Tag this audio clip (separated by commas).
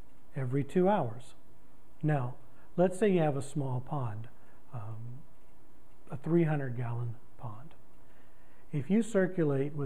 Speech